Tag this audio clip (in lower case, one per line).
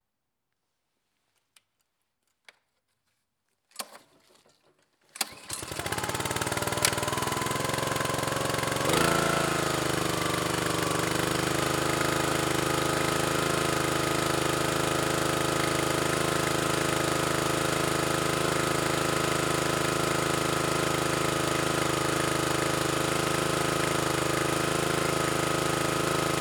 engine starting
engine